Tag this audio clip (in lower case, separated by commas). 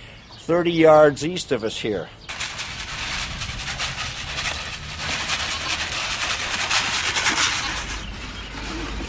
sheep, speech, bleat